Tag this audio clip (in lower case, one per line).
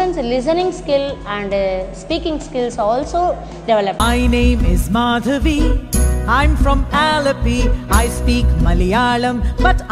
music
speech